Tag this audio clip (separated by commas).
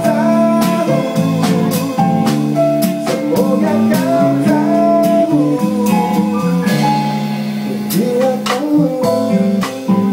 Acoustic guitar, Plucked string instrument, Guitar, Musical instrument, Music